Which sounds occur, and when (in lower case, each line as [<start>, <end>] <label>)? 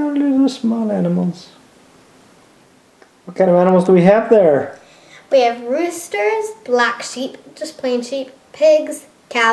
[0.00, 1.57] male speech
[0.00, 9.52] mechanisms
[0.11, 0.18] tick
[2.96, 3.04] tick
[3.27, 4.74] male speech
[3.61, 3.68] clicking
[3.81, 3.90] clicking
[4.79, 5.19] breathing
[5.30, 8.35] female speech
[8.52, 9.11] female speech
[9.29, 9.52] female speech